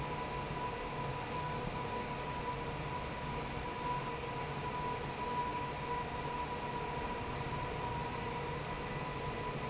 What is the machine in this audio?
fan